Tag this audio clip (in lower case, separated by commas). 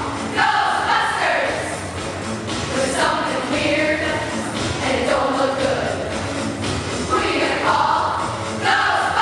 choir, music, singing choir